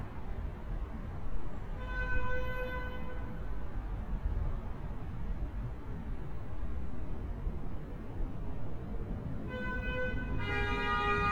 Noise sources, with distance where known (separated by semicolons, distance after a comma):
car horn, near